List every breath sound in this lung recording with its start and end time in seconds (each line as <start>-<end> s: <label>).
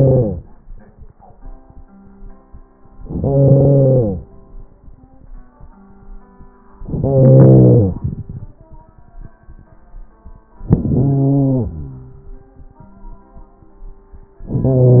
0.00-0.38 s: inhalation
2.96-4.26 s: inhalation
6.83-7.96 s: inhalation
7.88-9.44 s: exhalation
10.60-11.69 s: inhalation
11.66-12.74 s: exhalation
14.41-15.00 s: inhalation